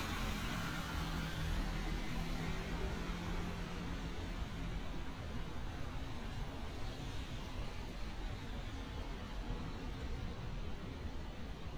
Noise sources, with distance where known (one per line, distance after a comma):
engine of unclear size